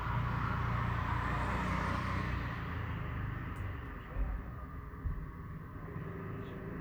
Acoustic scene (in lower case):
street